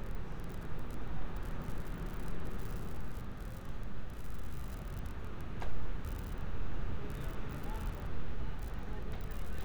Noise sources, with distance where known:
engine of unclear size, far
person or small group talking, far

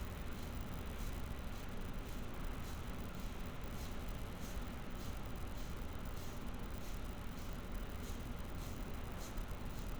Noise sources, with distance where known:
background noise

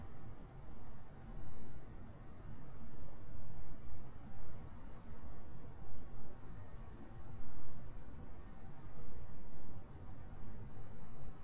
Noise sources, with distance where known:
background noise

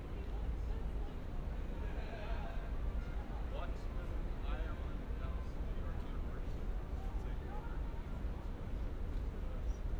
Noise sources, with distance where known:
person or small group talking, far
unidentified human voice

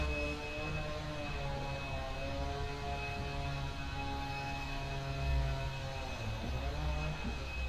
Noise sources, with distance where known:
unidentified powered saw

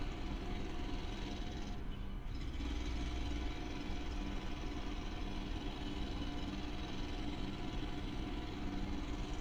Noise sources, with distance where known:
unidentified impact machinery

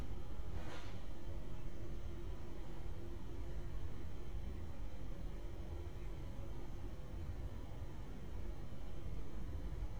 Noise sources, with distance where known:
background noise

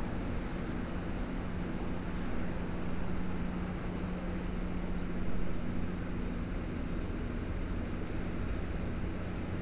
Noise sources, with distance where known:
engine of unclear size

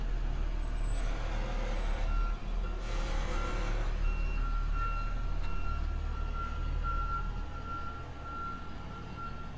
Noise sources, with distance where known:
large-sounding engine, near
reverse beeper, near

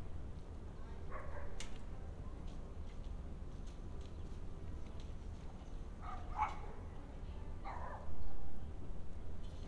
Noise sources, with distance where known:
dog barking or whining, far

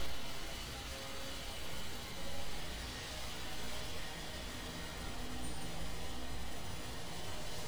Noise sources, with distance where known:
background noise

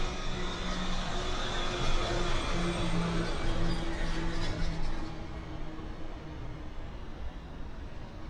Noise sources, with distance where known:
engine of unclear size

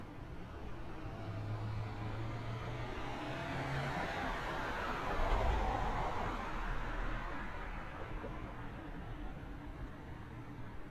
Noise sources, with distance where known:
engine of unclear size

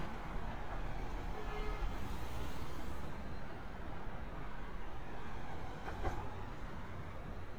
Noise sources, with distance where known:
car horn

